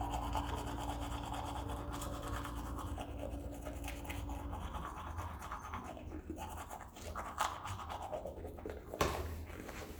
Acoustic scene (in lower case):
restroom